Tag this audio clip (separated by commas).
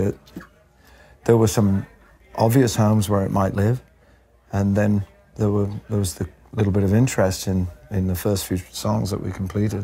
Speech